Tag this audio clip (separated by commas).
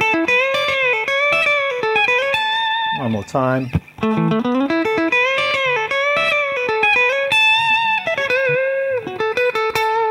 Plucked string instrument, Guitar, Speech, Music